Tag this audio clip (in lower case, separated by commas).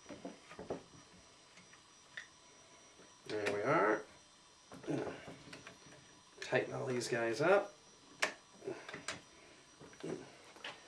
speech